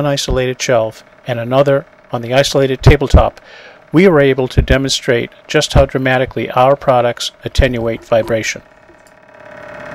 An adult male is speaking, and deep vibration occurs